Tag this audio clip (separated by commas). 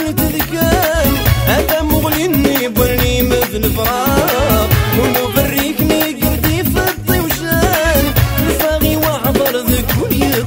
Rhythm and blues, Music